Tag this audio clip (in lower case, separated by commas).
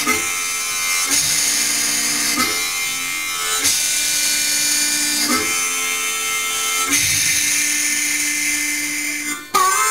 wind instrument, harmonica